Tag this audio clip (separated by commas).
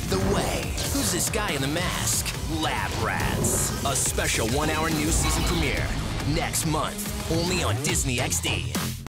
Music, Speech